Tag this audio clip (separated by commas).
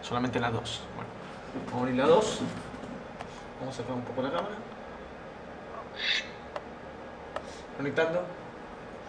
Tap, Speech